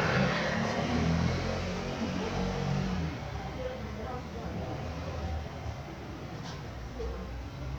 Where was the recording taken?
in a residential area